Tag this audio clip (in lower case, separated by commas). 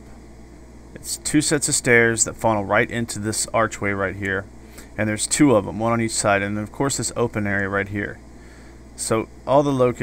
speech